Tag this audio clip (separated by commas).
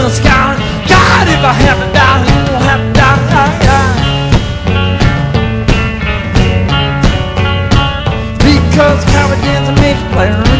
Music